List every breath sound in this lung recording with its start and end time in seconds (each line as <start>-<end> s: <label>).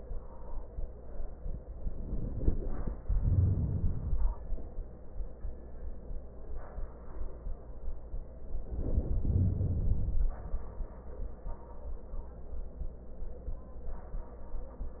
3.05-4.55 s: inhalation
8.59-10.53 s: inhalation